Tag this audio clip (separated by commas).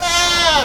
livestock, Animal